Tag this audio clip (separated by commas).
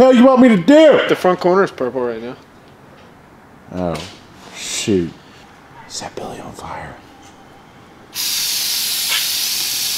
Speech, inside a large room or hall